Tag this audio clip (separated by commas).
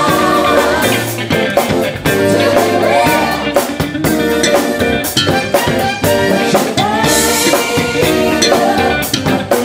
Funk, Music